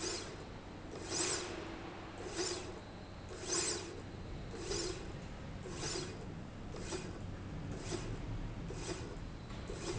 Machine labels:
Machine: slide rail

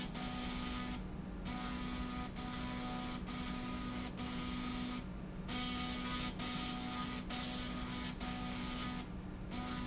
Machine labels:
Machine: slide rail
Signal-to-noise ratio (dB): 0 dB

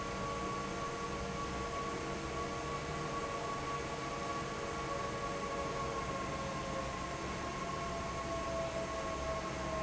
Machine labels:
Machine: fan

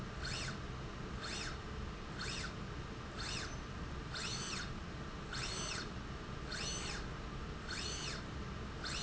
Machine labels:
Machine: slide rail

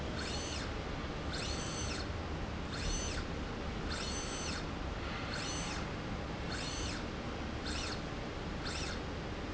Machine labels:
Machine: slide rail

